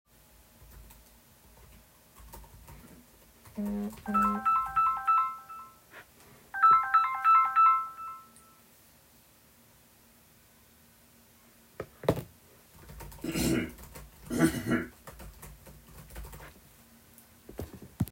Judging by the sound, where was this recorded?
office